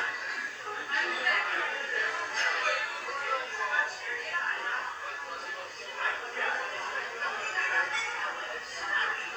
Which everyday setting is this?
crowded indoor space